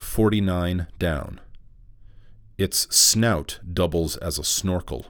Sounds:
male speech
speech
human voice

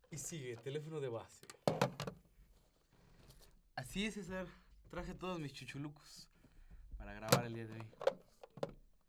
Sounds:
alarm
telephone

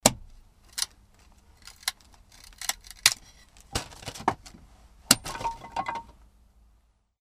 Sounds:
wood

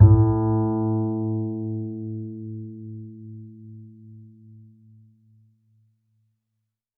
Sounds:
musical instrument
bowed string instrument
music

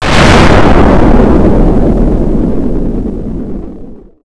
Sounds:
explosion

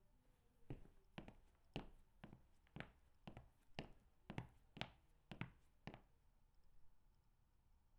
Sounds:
walk

